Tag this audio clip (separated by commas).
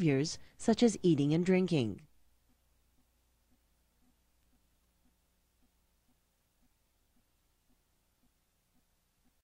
Speech